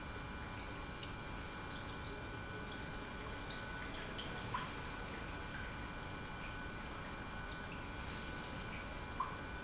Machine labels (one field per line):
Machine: pump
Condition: normal